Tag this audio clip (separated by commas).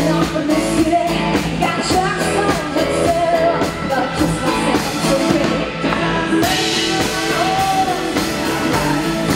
Country, Music